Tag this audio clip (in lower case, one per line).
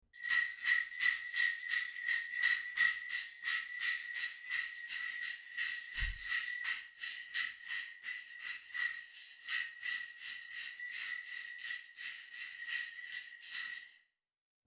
bell